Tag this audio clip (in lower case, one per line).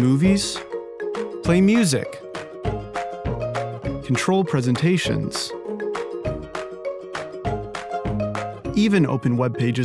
speech
music